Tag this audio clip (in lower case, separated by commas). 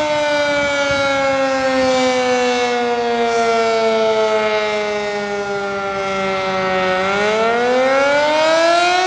civil defense siren